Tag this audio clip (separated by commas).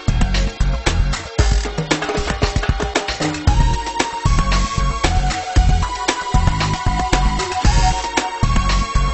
Music